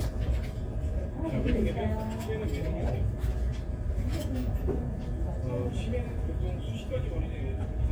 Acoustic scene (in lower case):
crowded indoor space